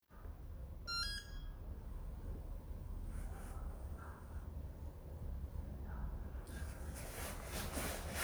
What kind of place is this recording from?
elevator